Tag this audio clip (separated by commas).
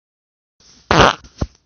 Fart